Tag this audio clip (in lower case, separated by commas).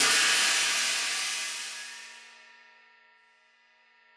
musical instrument, cymbal, hi-hat, music, percussion